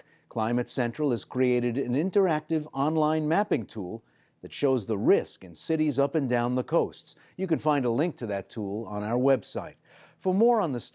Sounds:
speech

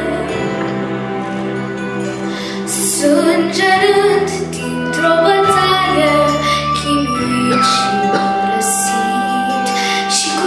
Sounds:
inside a large room or hall, music, singing

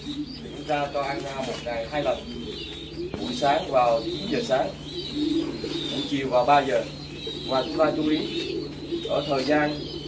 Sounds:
dove, bird, inside a small room, speech

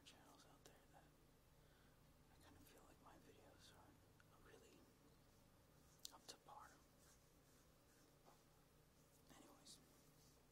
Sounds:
speech

